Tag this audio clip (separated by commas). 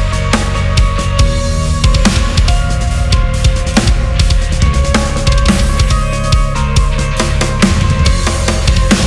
Music, Heavy metal, Plucked string instrument, Guitar, Musical instrument